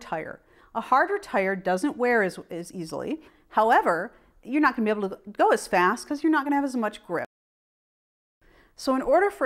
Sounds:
speech

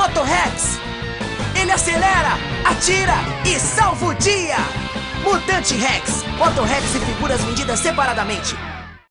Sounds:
music, speech

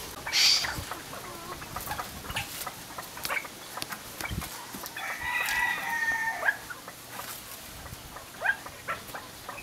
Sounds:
pheasant crowing

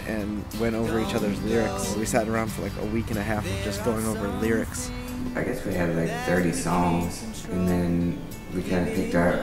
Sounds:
speech, music

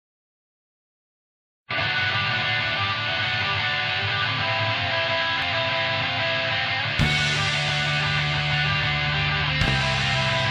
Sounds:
heavy metal, music

